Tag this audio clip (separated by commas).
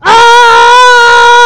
Human voice, Screaming